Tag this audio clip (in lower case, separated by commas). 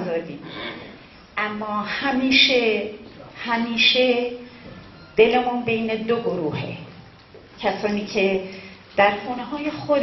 speech, female speech